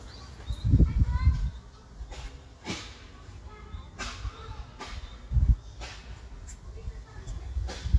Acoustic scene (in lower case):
park